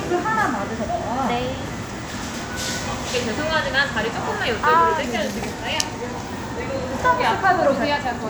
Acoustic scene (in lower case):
crowded indoor space